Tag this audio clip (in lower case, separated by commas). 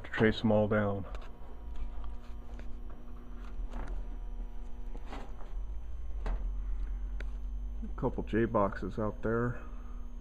speech